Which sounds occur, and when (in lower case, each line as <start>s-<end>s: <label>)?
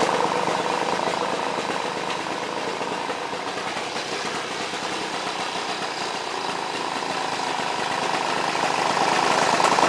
0.0s-9.8s: lawn mower